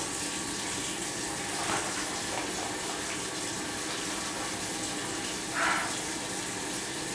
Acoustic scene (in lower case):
restroom